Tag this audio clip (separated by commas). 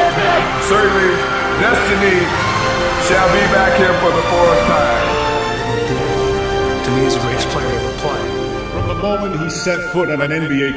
Music, Speech